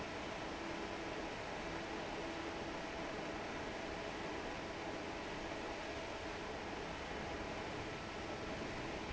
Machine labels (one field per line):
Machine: fan